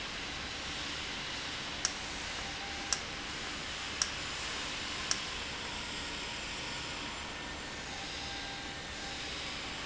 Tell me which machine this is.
valve